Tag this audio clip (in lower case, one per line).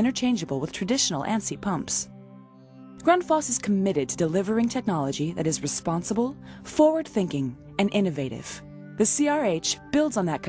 speech
music